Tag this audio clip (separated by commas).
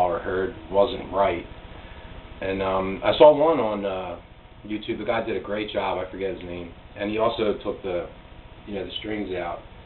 Speech